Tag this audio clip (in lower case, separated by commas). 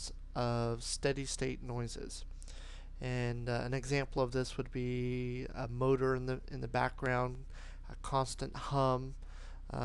speech